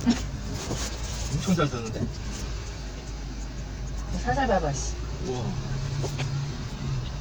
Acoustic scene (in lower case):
car